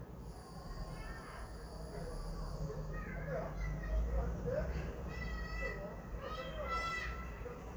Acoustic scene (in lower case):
residential area